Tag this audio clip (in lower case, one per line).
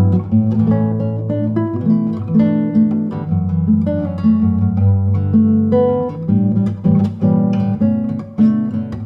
plucked string instrument
musical instrument
music
guitar
strum